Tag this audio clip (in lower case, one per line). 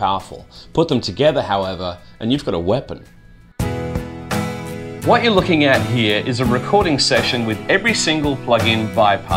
music
speech